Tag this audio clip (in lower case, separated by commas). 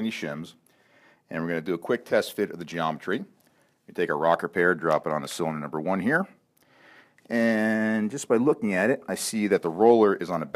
speech